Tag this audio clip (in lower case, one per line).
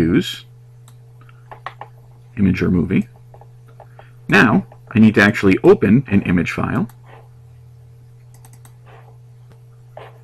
speech